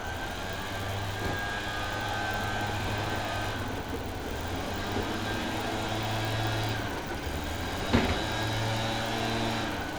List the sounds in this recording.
small-sounding engine